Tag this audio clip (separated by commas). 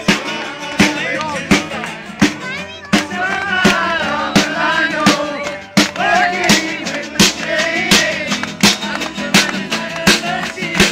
Music